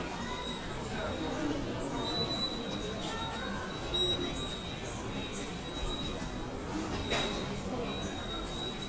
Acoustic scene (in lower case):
subway station